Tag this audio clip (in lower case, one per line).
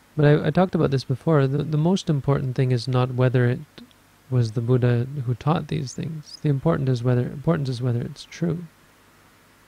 speech